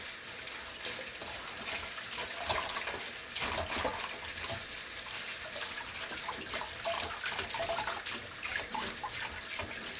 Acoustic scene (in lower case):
kitchen